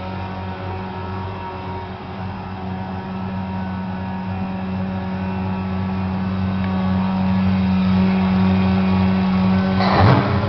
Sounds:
vehicle
car

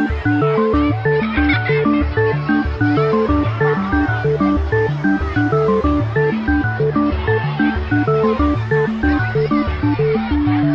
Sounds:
music

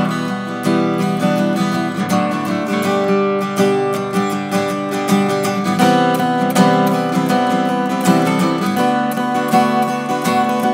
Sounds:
music
musical instrument
guitar
strum
plucked string instrument

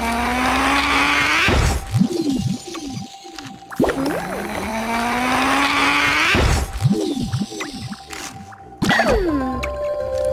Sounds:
music

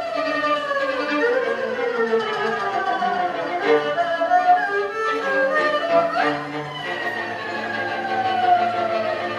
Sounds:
playing erhu

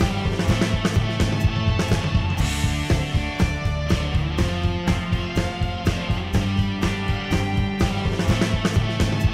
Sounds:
music

